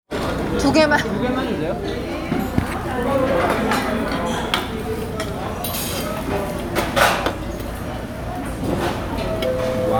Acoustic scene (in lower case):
crowded indoor space